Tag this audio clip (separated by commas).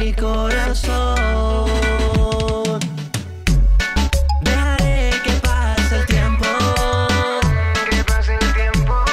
Dance music, Music